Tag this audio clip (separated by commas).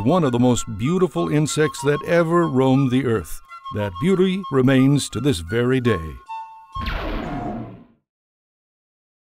Music, Speech